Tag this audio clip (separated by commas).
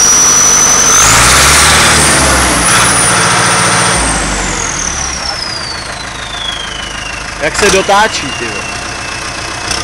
Speech